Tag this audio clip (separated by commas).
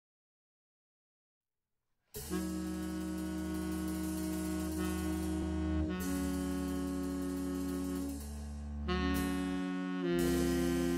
Music, Musical instrument, Wind instrument